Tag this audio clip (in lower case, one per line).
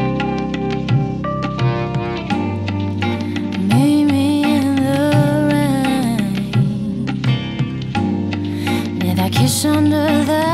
music